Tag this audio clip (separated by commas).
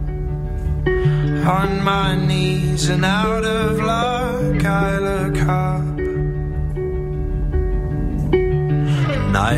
Music